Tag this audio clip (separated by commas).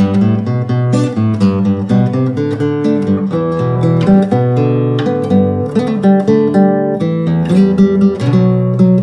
Musical instrument, Guitar, Plucked string instrument, Acoustic guitar, Music